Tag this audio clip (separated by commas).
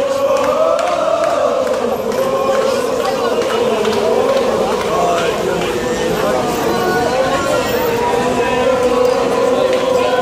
Speech